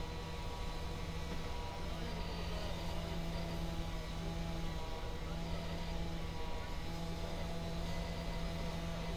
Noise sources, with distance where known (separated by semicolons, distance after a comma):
unidentified powered saw, far